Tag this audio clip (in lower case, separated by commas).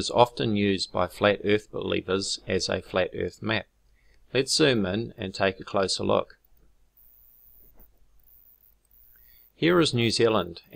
speech